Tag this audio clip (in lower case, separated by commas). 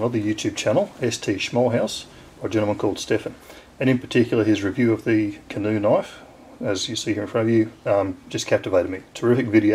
speech